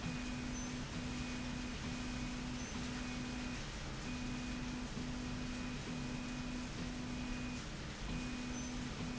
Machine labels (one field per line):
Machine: slide rail